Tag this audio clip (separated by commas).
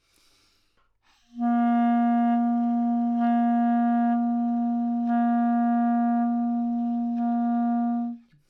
Wind instrument, Music, Musical instrument